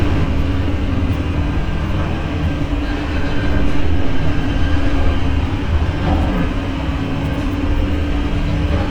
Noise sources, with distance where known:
large-sounding engine, near

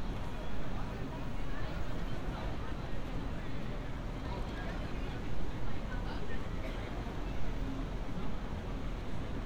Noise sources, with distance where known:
person or small group talking, near

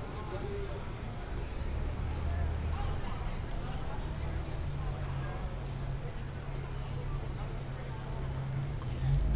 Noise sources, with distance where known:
person or small group talking

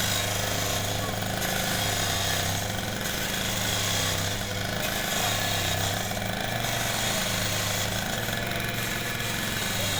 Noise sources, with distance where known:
unidentified powered saw, near

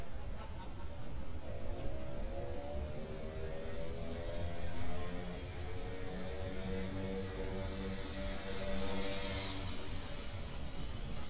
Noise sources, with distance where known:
small-sounding engine, near

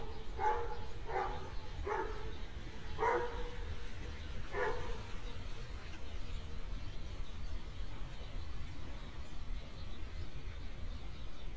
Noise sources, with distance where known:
dog barking or whining, far

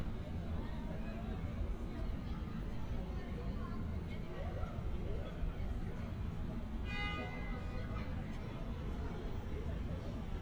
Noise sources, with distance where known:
car horn, near
person or small group talking, far

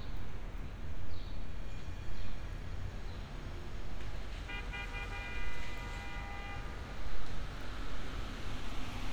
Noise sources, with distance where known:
car horn, far

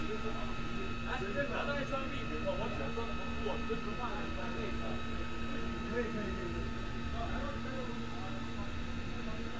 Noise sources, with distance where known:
person or small group talking, near

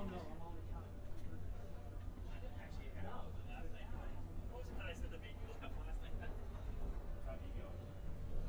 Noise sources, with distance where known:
person or small group talking, near

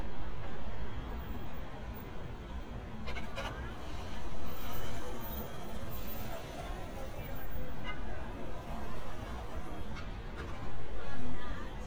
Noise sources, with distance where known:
person or small group talking

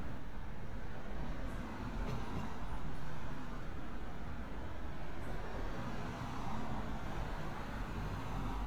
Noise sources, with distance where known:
medium-sounding engine

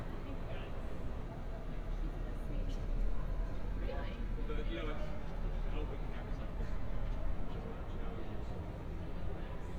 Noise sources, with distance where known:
person or small group talking, near

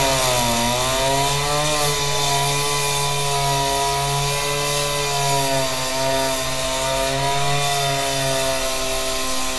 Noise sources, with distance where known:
large rotating saw, near

